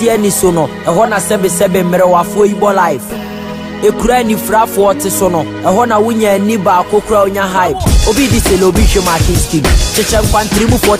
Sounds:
music

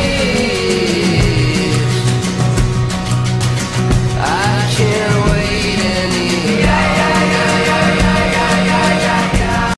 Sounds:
electronic music, music

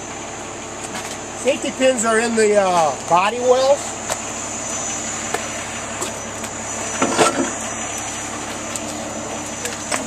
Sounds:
speech, vehicle, truck

